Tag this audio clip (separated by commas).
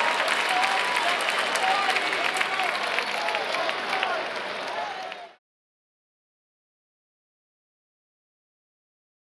Speech